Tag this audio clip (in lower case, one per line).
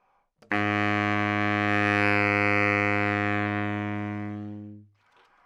wind instrument
musical instrument
music